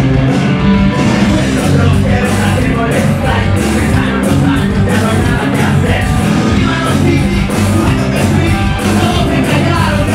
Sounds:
music

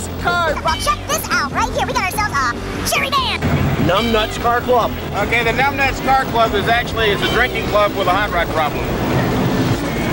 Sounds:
speech, music

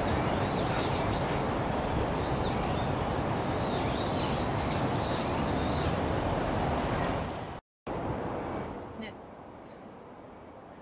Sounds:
crow cawing

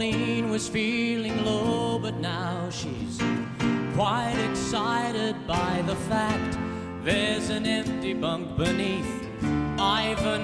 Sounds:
music

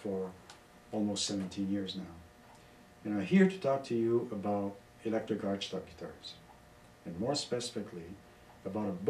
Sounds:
speech

